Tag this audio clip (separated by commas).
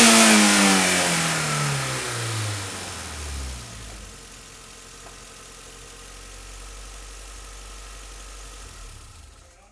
Motor vehicle (road), Car, Vehicle